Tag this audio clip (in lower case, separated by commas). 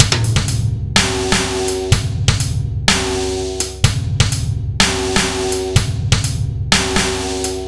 bass drum, drum, percussion, snare drum, musical instrument, music, drum kit